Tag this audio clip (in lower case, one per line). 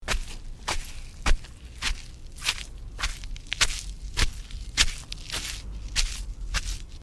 footsteps